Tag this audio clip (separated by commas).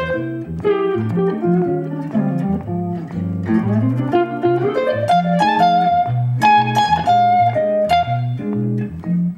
inside a large room or hall, Guitar, Music, Musical instrument, Blues, Plucked string instrument